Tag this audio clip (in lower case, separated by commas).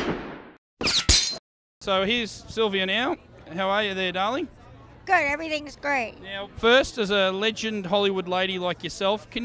shatter, speech